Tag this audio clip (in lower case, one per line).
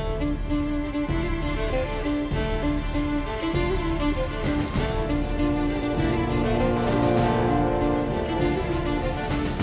music